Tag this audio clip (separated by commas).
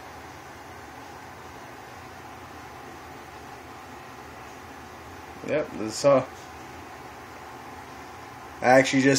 inside a small room, Speech